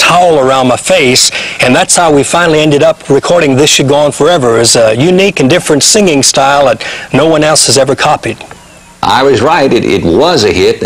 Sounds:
Speech

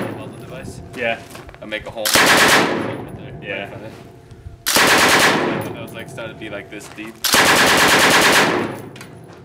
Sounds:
machine gun shooting

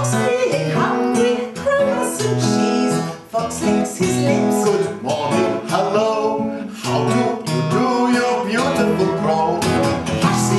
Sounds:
Music

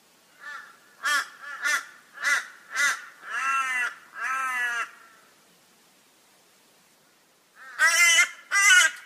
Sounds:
crow cawing

